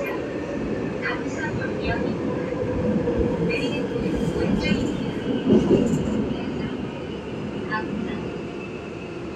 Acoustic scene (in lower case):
subway train